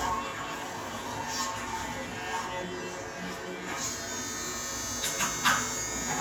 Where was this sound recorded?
in a restroom